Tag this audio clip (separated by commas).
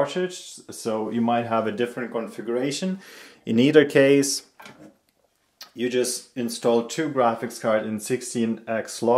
Speech, inside a small room